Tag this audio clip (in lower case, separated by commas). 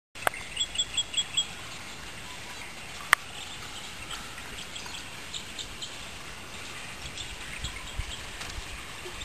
outside, rural or natural, bird